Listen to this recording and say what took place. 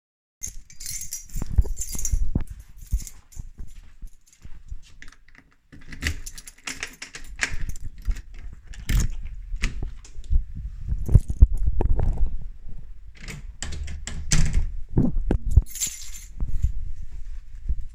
I walked to my front door, opened it with my key, went through and closed it